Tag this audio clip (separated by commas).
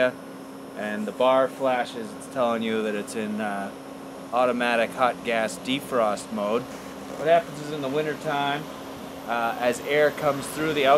Speech